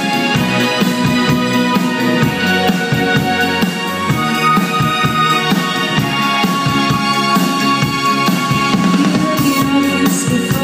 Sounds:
music

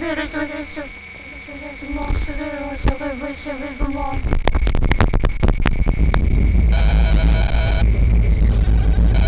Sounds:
electronica, electronic music, music

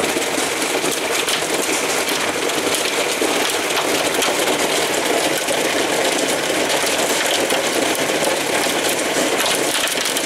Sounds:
rain

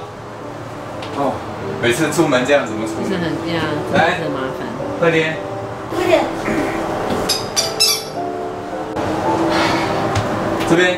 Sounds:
music, speech

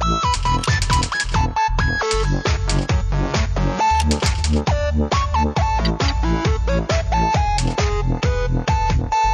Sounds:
music

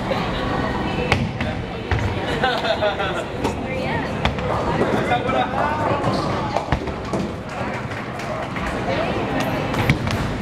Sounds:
bowling impact

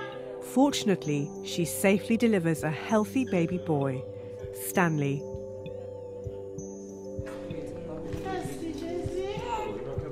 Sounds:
music, speech

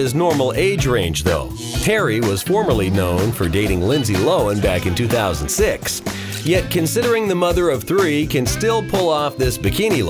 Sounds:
speech, music

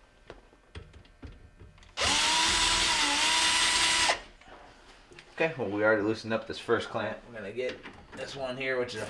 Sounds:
inside a small room, blender, speech

